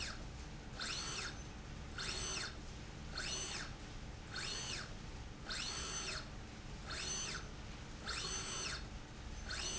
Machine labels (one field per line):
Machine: slide rail